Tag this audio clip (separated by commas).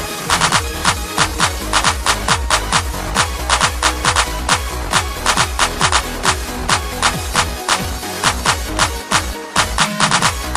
Music